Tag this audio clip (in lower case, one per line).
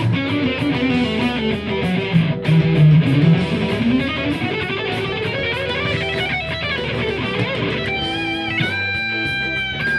guitar
plucked string instrument
musical instrument
music